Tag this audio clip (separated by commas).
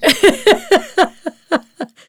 Human voice, Laughter, Giggle